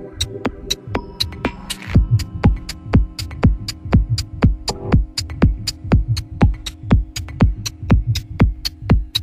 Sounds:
music
techno
electronic music

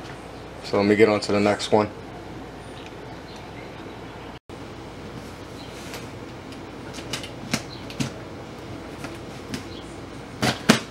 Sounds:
animal
speech

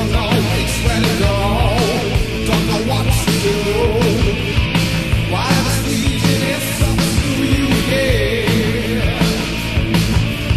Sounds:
music

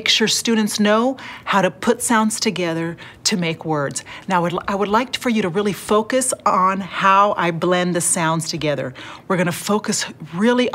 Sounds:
speech

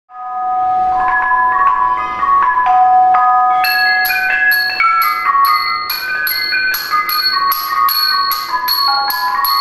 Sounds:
musical instrument
music
marimba

